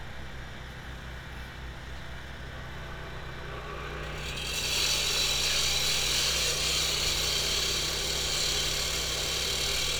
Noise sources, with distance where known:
large rotating saw, near

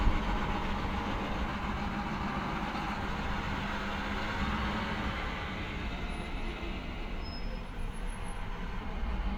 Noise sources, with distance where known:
large-sounding engine, near

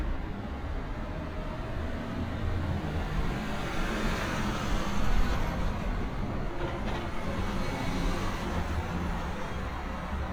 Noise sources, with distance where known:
medium-sounding engine, near

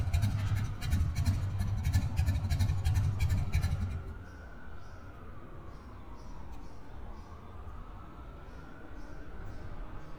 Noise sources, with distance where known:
medium-sounding engine, near

